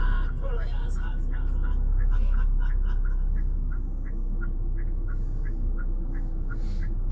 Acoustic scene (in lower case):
car